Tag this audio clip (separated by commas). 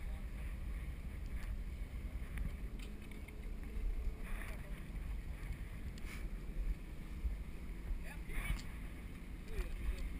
Speech